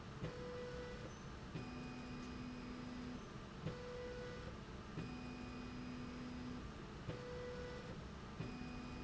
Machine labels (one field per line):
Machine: slide rail